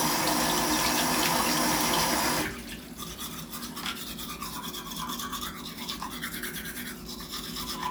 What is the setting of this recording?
restroom